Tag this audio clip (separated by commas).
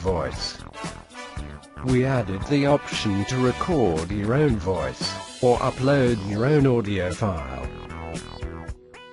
man speaking, Music, monologue, Speech